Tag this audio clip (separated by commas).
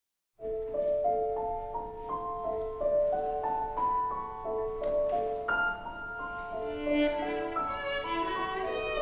Music, Violin, Musical instrument